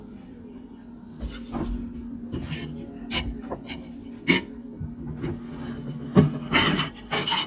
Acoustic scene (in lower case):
kitchen